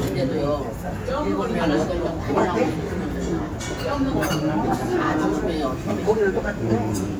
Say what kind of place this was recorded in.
restaurant